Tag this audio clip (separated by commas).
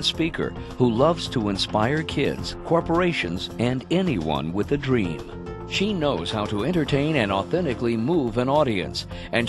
Music, Speech